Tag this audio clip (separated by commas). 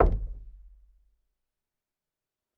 Door, Knock, home sounds